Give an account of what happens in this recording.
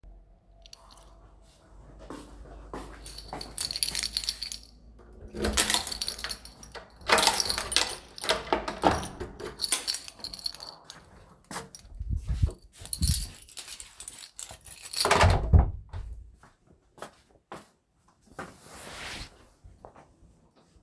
I walked to the door from the hallway, I used my keys to open it, then closed it